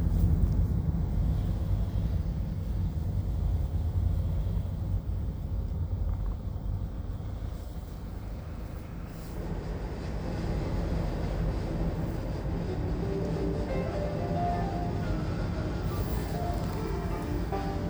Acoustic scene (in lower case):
car